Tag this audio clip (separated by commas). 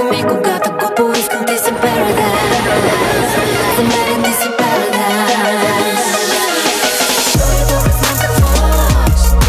Music, Rhythm and blues, Hip hop music